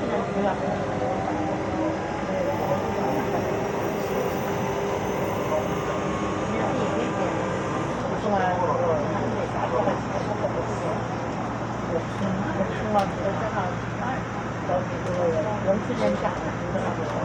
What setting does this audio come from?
subway train